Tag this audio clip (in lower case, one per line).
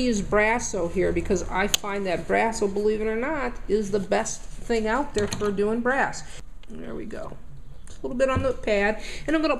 inside a small room
speech